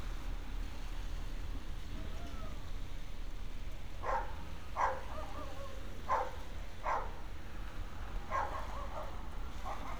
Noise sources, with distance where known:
dog barking or whining, near

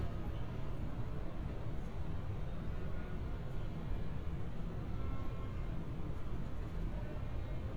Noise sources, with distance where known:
background noise

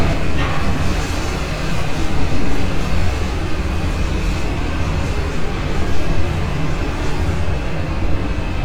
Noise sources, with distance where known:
engine of unclear size, near

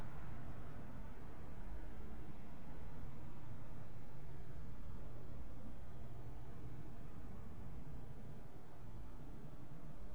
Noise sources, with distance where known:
background noise

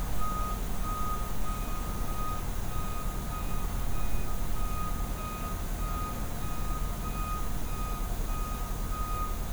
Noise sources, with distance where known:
reverse beeper, near

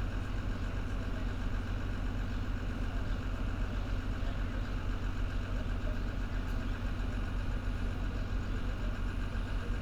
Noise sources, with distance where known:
large-sounding engine, near

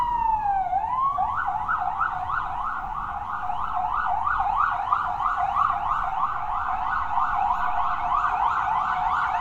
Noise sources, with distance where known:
siren, near

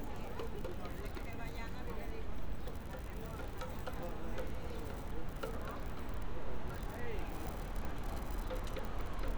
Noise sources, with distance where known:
unidentified human voice

